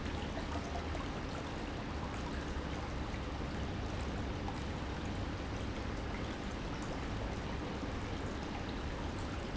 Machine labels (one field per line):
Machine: pump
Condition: normal